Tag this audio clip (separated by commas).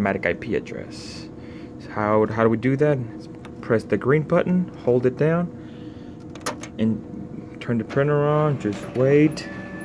Printer, Speech